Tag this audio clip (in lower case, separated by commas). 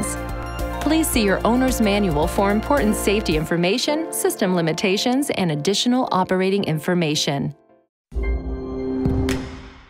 speech, music